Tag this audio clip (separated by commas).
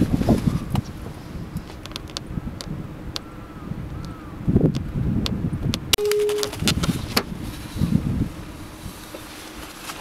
Animal